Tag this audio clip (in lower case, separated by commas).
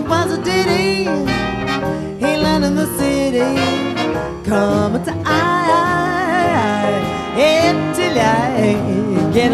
singing, jazz, song, orchestra, swing music, music